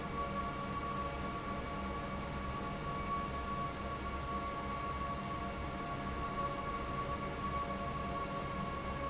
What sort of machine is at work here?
fan